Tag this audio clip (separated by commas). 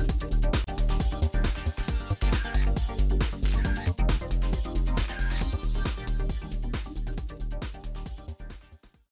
Music, Single-lens reflex camera